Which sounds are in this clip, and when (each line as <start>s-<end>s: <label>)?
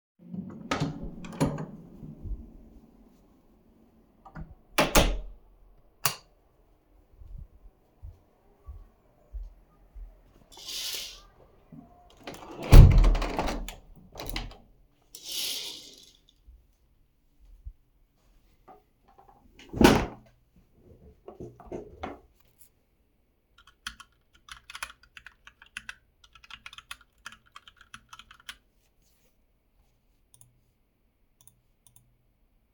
0.6s-2.2s: door
4.7s-5.4s: door
6.0s-6.2s: light switch
12.2s-15.0s: window
23.7s-29.0s: keyboard typing